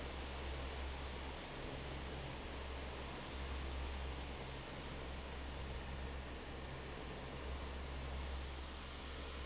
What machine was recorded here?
fan